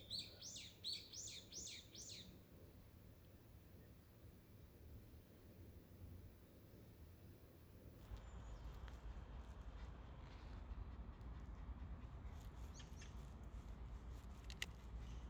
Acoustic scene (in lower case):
park